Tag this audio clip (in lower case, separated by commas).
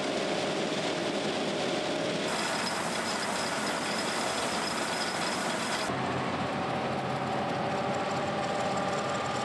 vehicle